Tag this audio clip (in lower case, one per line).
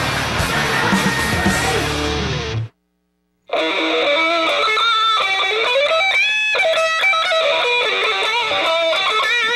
tapping (guitar technique)
music
electric guitar